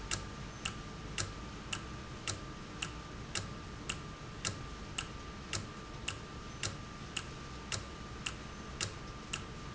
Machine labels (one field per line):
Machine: valve